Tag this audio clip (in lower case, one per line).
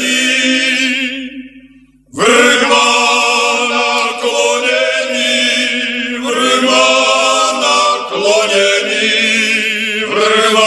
radio